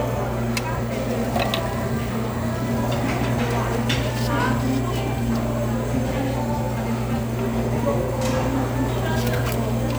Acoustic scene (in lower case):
restaurant